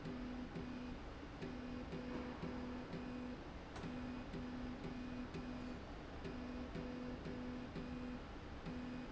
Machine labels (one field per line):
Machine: slide rail